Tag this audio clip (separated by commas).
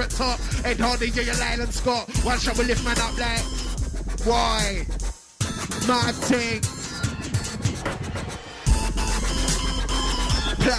Dubstep, Music